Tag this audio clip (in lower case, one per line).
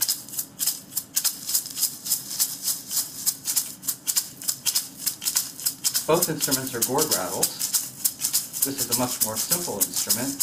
inside a small room
rattle (instrument)
speech